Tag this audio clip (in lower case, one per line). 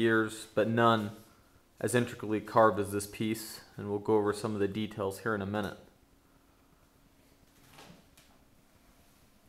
speech